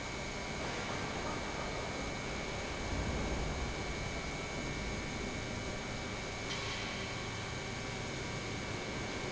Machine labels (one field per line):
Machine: pump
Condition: normal